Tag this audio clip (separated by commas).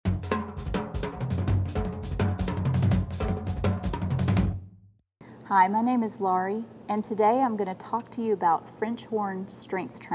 Hi-hat, Cymbal